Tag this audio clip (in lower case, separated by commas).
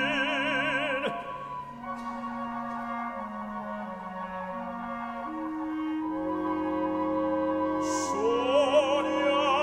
opera, music